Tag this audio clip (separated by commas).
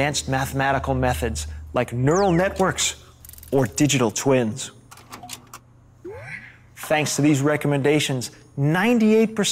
Speech